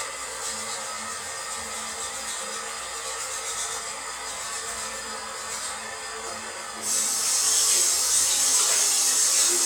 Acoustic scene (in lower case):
restroom